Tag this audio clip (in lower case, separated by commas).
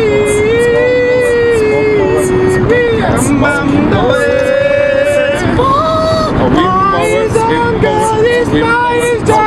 vehicle